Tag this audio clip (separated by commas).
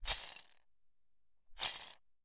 Rattle